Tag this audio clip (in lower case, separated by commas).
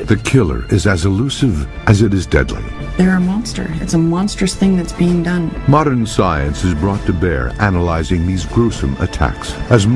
music, speech